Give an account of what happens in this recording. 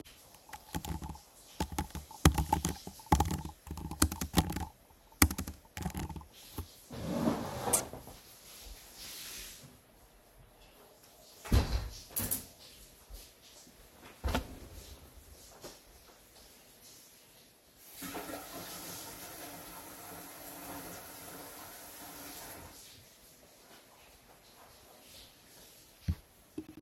I am typing on my Macbook; then I get up (hence the chair moving); walk over and close the window; then go to the kitchen sink (open kitchen + living space) to wash my hands. In the bathroom right next to the living room; my girlfriend is taking a shower.